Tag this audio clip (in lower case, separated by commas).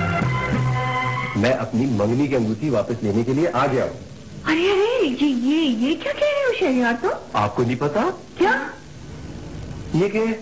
speech, music